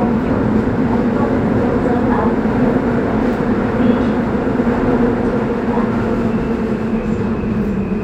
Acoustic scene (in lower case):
subway train